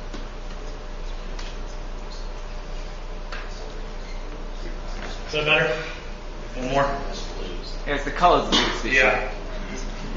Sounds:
Speech

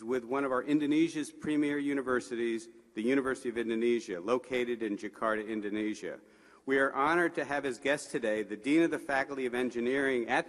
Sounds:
Speech, man speaking, Narration

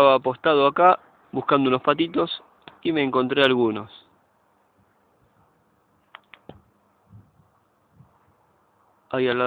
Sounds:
Speech

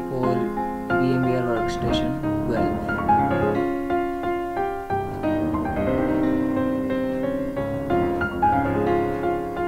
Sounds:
Speech, Piano, Music

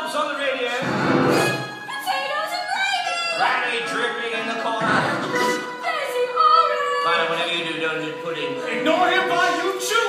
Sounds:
Music, Speech

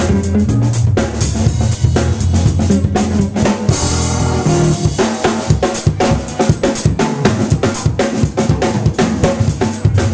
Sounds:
Rimshot, Percussion, Snare drum, Drum kit, Bass drum, Drum roll, Drum

